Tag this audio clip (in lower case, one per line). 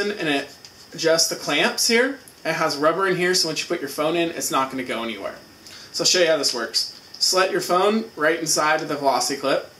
speech